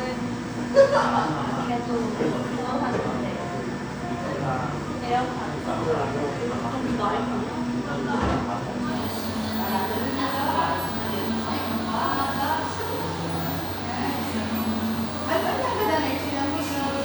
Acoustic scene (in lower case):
cafe